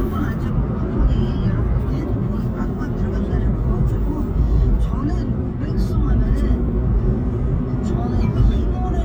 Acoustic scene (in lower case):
car